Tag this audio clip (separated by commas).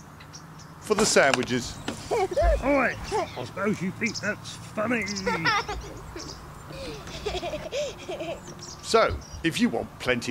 Speech